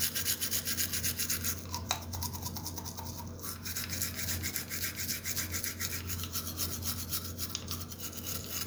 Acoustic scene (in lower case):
restroom